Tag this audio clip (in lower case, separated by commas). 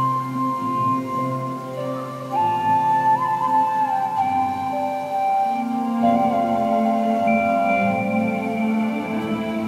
music